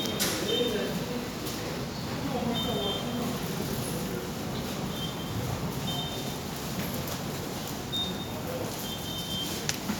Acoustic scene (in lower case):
subway station